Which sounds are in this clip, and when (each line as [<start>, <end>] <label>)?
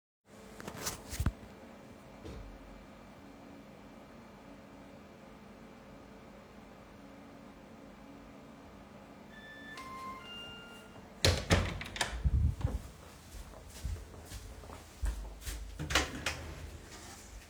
[9.47, 11.04] bell ringing
[11.20, 12.55] door
[13.26, 15.70] footsteps
[15.76, 16.46] door